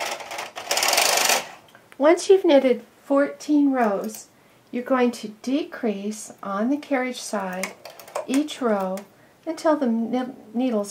A woman speaks and operates a sewing machine